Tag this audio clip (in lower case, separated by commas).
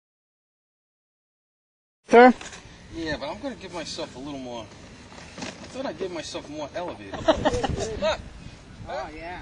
speech